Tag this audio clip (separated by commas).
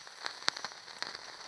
Fire